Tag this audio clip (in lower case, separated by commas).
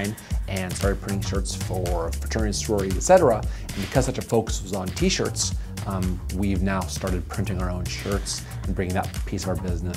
music, speech